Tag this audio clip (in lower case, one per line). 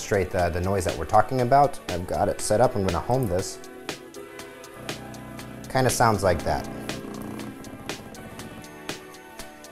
speech
music